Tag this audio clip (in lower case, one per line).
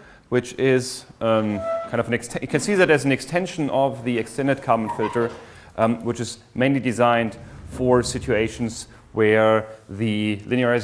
speech